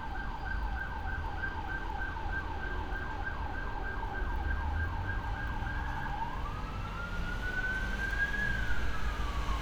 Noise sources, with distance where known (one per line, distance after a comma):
medium-sounding engine
siren, far